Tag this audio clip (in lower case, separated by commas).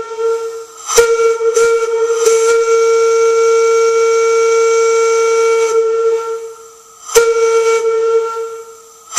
steam whistle